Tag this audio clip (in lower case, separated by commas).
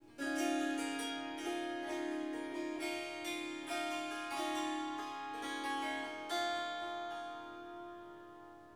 musical instrument, music, harp